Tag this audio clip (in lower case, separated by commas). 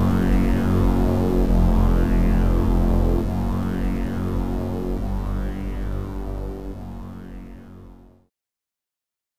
music